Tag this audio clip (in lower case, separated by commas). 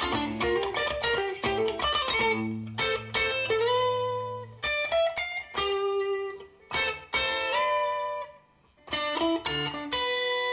music, plucked string instrument, musical instrument, electric guitar, guitar